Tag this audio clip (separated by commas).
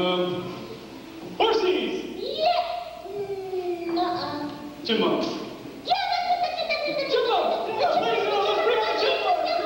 Speech